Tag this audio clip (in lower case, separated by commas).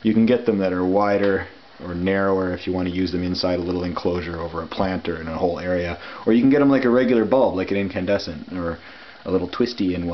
speech